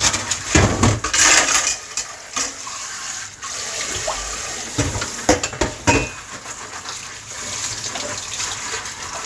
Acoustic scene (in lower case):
kitchen